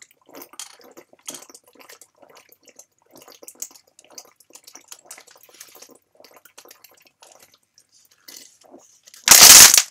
Continous crinkling